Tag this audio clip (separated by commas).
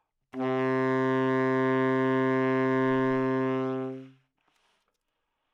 Music, Wind instrument, Musical instrument